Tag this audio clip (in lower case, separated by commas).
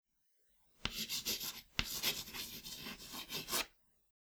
domestic sounds, writing